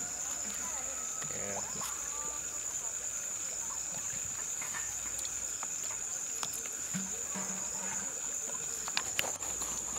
Insects and birds chirp outside in the woods there are faint footsteps walking by